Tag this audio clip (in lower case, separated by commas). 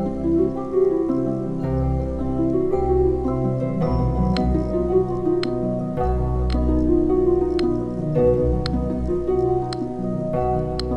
inside a small room, music